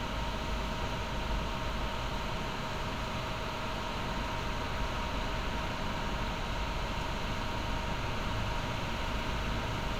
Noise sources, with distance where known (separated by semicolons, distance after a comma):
engine of unclear size, near